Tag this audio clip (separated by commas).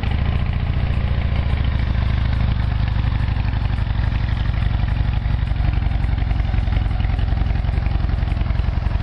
Motorcycle, driving motorcycle, Vehicle